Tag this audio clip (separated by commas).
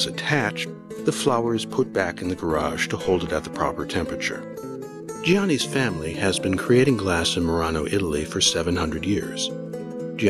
Music, Speech